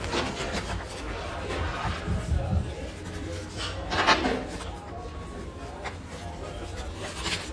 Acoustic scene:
restaurant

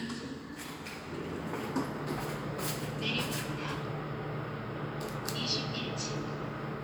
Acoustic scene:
elevator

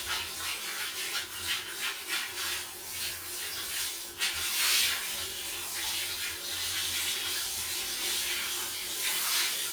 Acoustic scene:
restroom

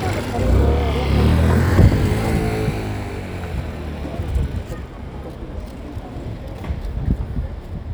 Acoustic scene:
residential area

